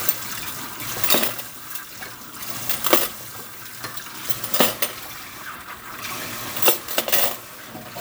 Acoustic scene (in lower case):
kitchen